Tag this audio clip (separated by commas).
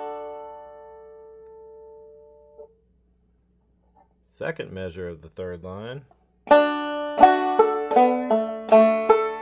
Music, Musical instrument, Plucked string instrument, Ukulele, Speech, Banjo